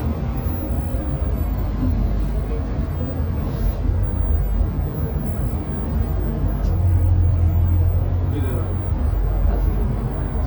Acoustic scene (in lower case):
bus